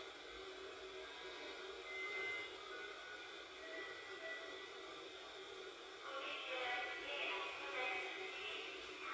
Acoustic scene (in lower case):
subway train